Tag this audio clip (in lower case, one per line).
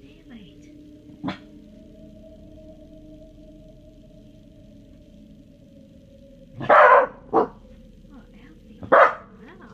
dog growling